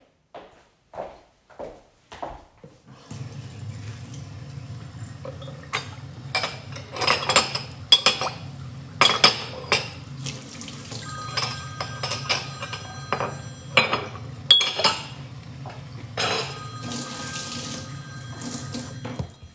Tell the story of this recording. I walked to the sink to do the dishes. I opened the tap, the water started to run when the phone was ringing.